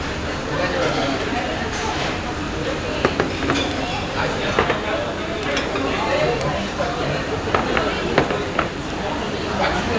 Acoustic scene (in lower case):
restaurant